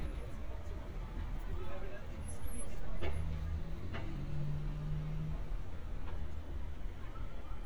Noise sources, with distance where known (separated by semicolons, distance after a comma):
medium-sounding engine, near